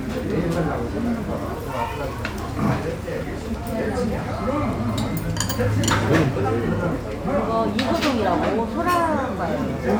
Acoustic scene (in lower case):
restaurant